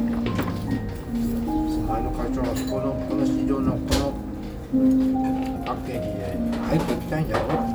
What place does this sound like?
restaurant